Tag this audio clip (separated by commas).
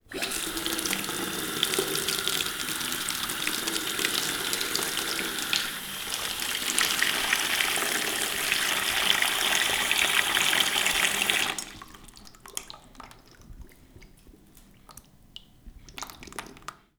faucet, home sounds